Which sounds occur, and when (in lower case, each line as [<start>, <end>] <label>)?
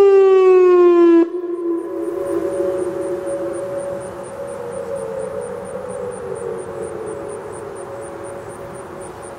[0.00, 9.35] siren
[1.86, 9.35] mechanisms